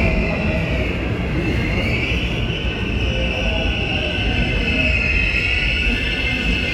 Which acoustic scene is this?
subway station